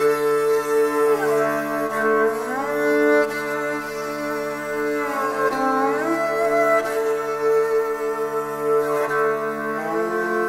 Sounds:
Music

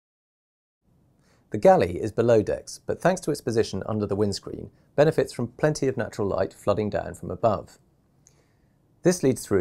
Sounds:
Speech

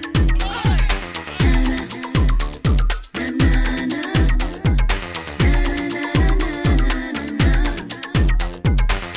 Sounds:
Disco

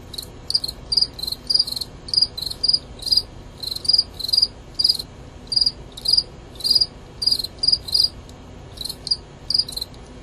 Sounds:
Insect, Cricket

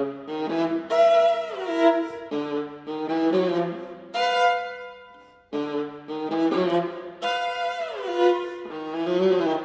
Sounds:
Trumpet, Brass instrument

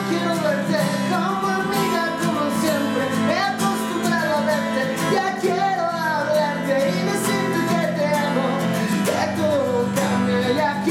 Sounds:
Music

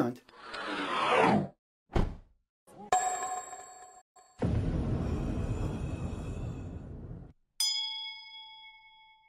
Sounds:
Music, Speech, inside a small room

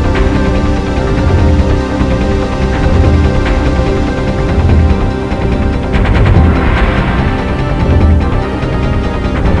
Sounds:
Music

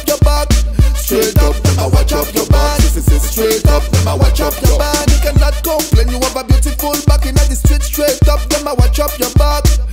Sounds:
Music

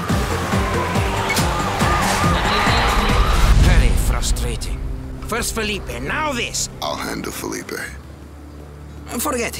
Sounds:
Speech, Music

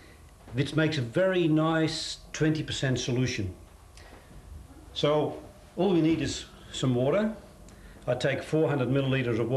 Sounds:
Speech, inside a small room, Liquid

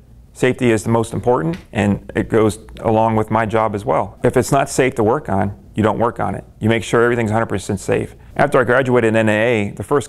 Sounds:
Speech

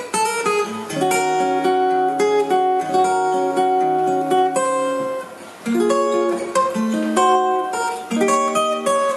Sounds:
Plucked string instrument, Music, Guitar, Musical instrument, Strum

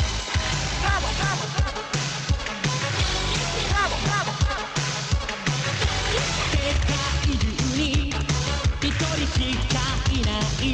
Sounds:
Music

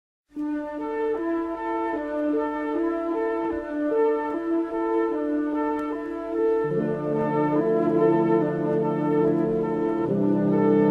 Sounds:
Violin, Music, Bowed string instrument, Musical instrument

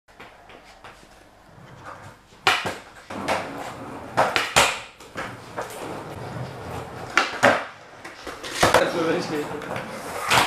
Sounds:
skateboarding

